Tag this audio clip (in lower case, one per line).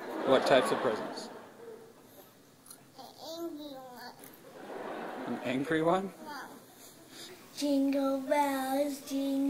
speech
inside a small room
child speech